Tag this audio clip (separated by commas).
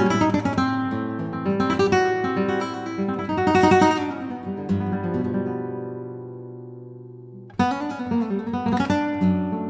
Acoustic guitar, Musical instrument, Plucked string instrument, Music, Guitar